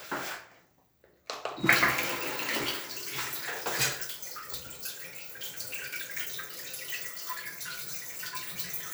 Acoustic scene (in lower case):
restroom